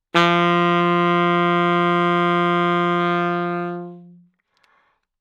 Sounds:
wind instrument
musical instrument
music

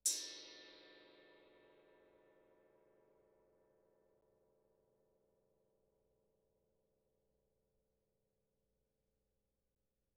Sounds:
musical instrument
music
gong
percussion

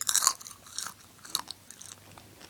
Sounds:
mastication

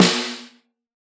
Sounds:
music
drum
percussion
musical instrument
snare drum

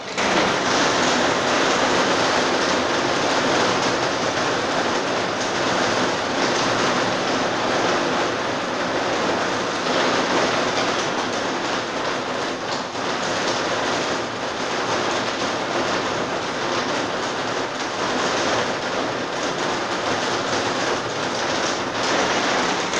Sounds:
rain
water

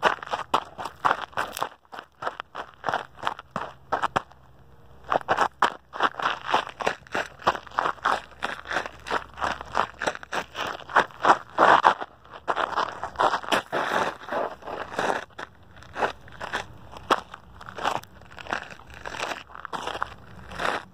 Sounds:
run

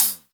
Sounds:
musical instrument
percussion
music
cymbal
hi-hat

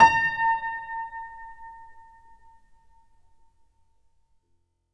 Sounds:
music
keyboard (musical)
musical instrument
piano

